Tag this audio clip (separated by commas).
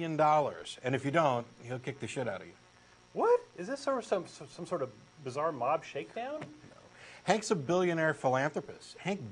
Speech